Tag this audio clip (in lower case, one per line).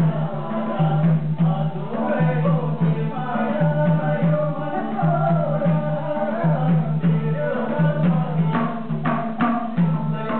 traditional music
music